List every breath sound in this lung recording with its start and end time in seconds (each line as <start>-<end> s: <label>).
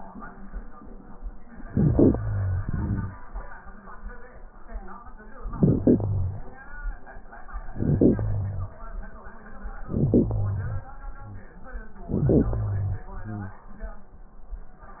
1.72-3.22 s: inhalation
1.72-3.22 s: crackles
5.38-6.62 s: crackles
7.61-8.85 s: inhalation
7.61-8.85 s: crackles
9.84-10.85 s: inhalation
9.84-10.85 s: crackles
12.00-13.06 s: inhalation
13.07-14.18 s: exhalation